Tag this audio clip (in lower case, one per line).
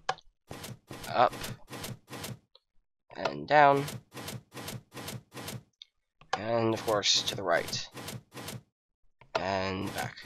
speech